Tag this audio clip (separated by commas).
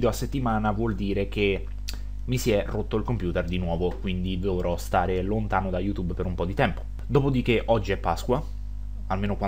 Speech